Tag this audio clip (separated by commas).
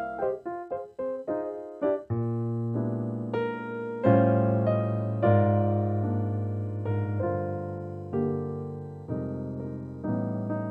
Music